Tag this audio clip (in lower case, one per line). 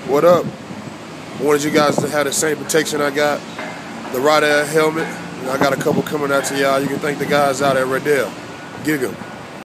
speech